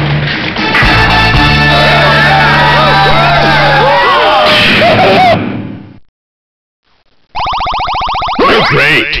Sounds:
speech
music

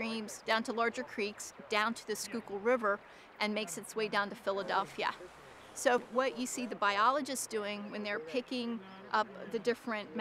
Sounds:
speech

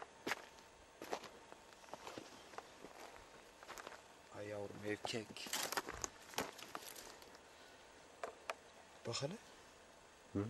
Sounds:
speech
walk

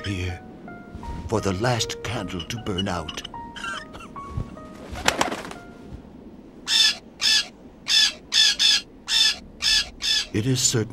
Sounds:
speech
music

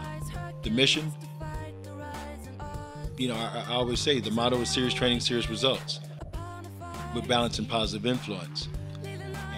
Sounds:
speech
country
music

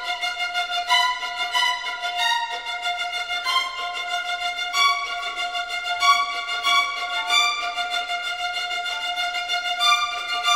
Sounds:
music

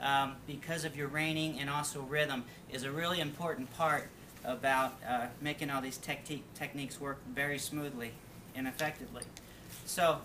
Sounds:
speech

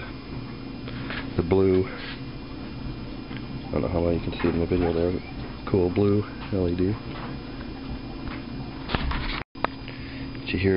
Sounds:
speech

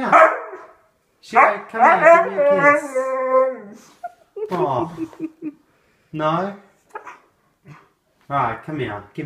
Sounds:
animal
speech
domestic animals
dog

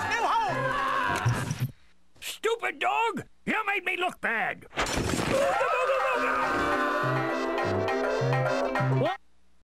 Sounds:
music
speech

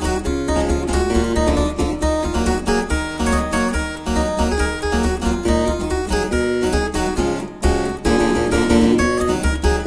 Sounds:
playing harpsichord

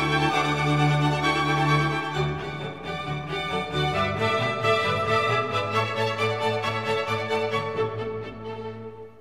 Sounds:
maraca
musical instrument
music

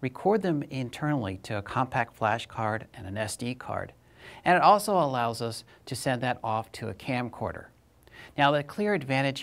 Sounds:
speech

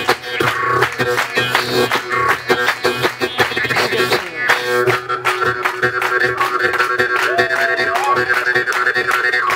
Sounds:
music

